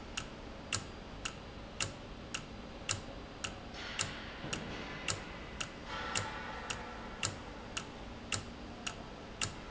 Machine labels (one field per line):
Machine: valve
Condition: normal